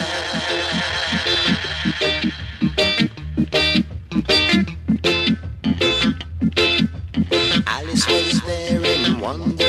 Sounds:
Music

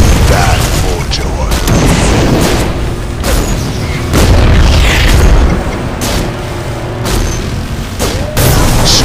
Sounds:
Speech, Boom, Music

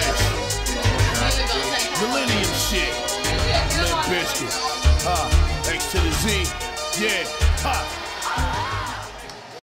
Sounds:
Speech, Music

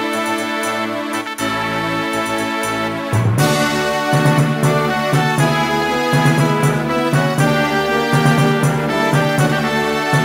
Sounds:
Music, Soundtrack music, Video game music

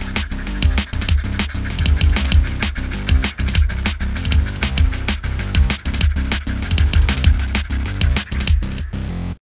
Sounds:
Drum kit, Drum, Musical instrument, Bass drum, Music

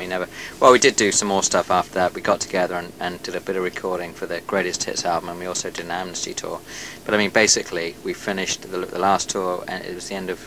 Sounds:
Speech

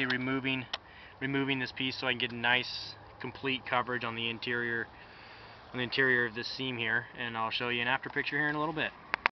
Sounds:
Speech

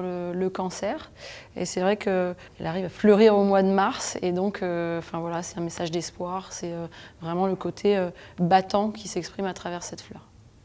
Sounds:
Speech

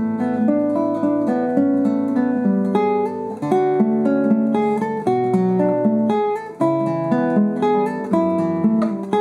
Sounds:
Music, Plucked string instrument, Musical instrument, Guitar

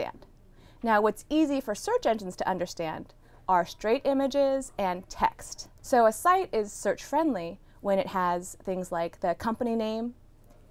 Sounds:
Speech

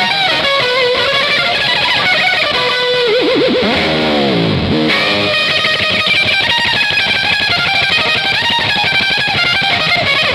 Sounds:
Musical instrument, Electric guitar, Music, Plucked string instrument, playing electric guitar

